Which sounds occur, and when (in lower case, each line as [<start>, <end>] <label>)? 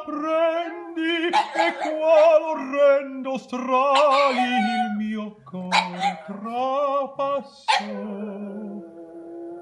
[0.01, 1.40] male singing
[1.33, 2.42] bark
[1.85, 5.33] male singing
[3.89, 4.87] bark
[5.52, 8.84] male singing
[5.72, 6.32] bark
[7.65, 7.91] bark
[7.81, 9.61] howl